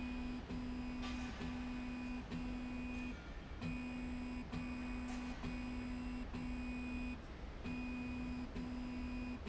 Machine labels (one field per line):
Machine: slide rail